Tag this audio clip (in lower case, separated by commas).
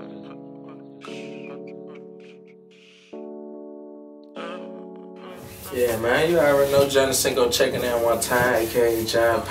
music, speech